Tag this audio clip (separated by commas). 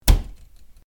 Cupboard open or close, home sounds